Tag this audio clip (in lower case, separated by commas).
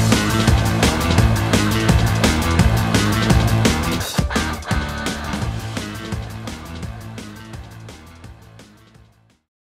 music